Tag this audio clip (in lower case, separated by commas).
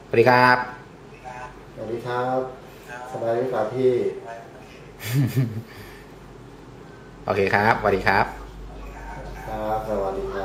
speech